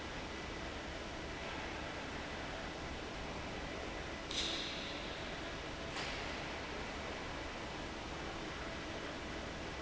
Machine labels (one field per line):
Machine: fan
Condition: abnormal